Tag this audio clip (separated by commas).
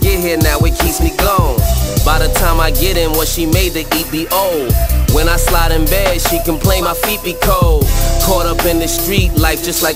Rapping, Singing, Music